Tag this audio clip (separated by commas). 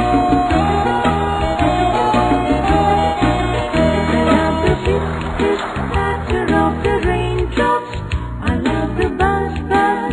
Music, Music for children